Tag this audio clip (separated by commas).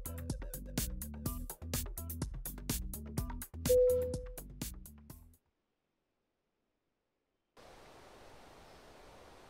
Music